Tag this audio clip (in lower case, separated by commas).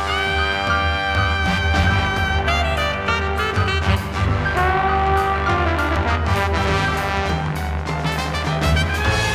tap, music